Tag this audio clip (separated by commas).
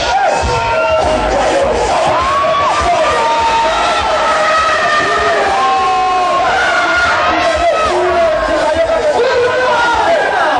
Music, Cheering